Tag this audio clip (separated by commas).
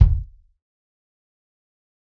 Drum, Percussion, Musical instrument, Music, Bass drum